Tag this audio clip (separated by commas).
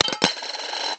Domestic sounds, Coin (dropping)